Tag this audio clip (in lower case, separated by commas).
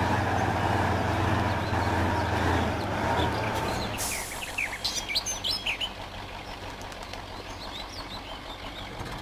bird song, tweet, bird